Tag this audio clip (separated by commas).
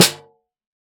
Snare drum, Percussion, Drum, Music, Musical instrument